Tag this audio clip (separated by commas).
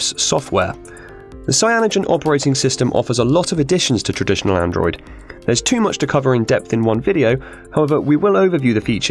Music, Speech